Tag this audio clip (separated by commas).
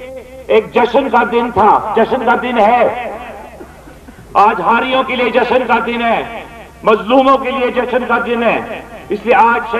monologue, Speech, Male speech